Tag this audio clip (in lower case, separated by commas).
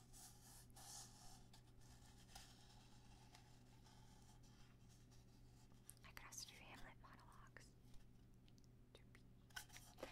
silence, inside a small room, speech